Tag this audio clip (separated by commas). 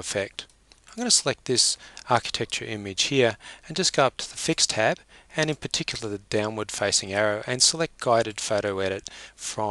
Speech